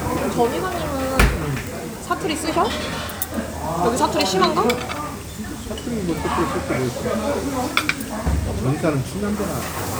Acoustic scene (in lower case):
restaurant